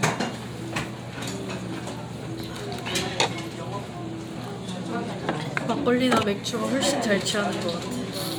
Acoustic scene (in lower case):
restaurant